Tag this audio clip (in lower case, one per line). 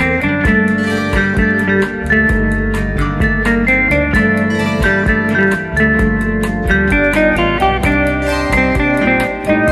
music